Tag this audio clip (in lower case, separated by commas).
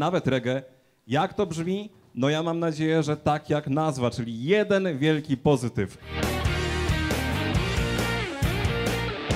music, exciting music, speech